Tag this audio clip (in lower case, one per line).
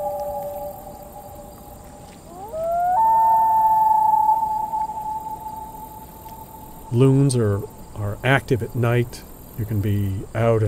speech